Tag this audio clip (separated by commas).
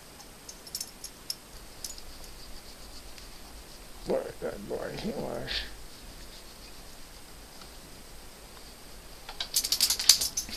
Speech